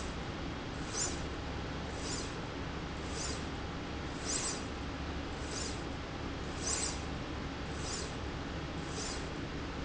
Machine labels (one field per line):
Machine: slide rail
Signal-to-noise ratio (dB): -6 dB